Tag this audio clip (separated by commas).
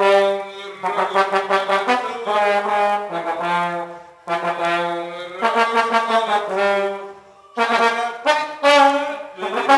playing trombone